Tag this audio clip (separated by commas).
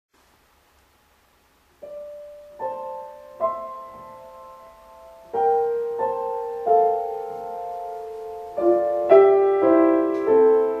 Piano, Musical instrument, Keyboard (musical), playing piano, Music